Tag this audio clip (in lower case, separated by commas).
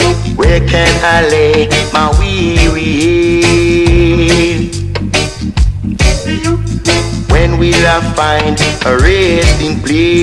music